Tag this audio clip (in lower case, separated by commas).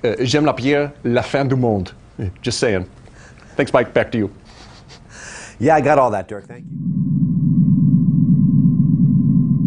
speech, inside a large room or hall